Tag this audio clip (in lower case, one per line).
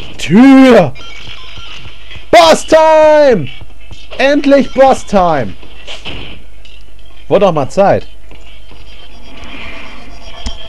speech